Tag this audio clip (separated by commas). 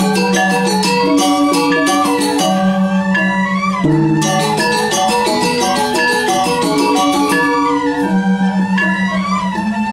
Traditional music, Music